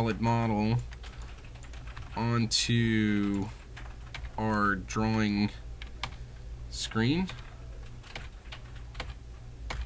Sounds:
speech

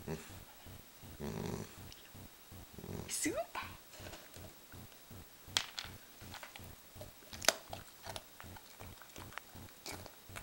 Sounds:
dog growling

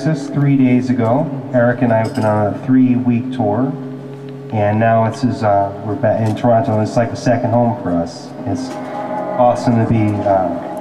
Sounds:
speech

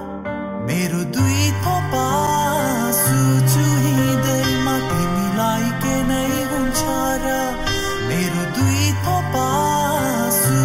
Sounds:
music

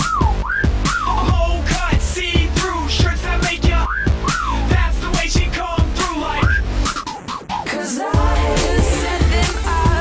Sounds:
exciting music
music

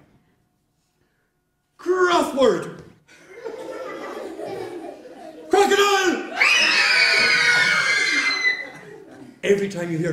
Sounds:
speech

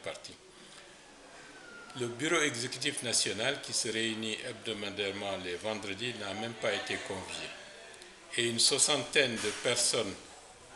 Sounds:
speech

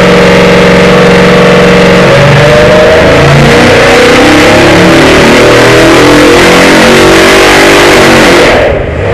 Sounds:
idling
vehicle
revving
engine

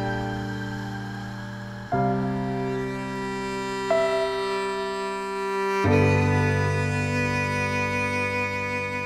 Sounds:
piano
keyboard (musical)
music

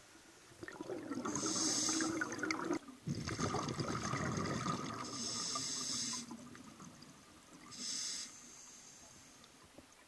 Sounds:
scuba diving

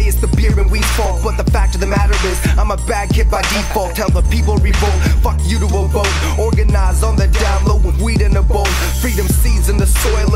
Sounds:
rapping
music

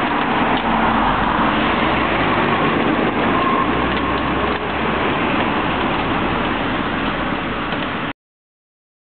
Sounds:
vehicle
vroom
car

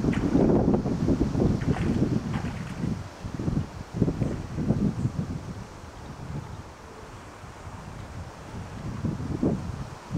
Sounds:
outside, rural or natural

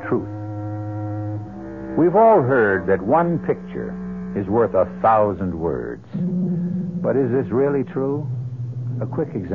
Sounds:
speech

